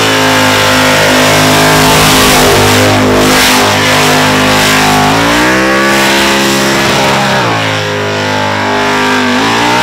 A race car engine is running and is accelerated